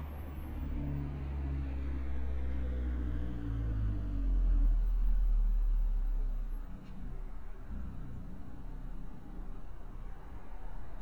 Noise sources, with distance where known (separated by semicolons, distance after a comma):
engine of unclear size, far